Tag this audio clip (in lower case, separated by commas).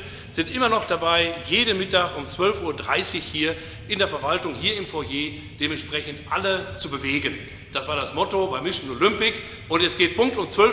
speech